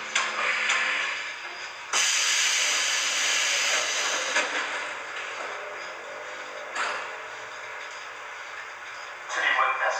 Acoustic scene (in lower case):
subway train